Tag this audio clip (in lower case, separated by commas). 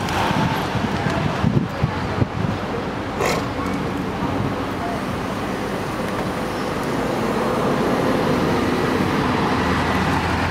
vehicle, driving buses, bus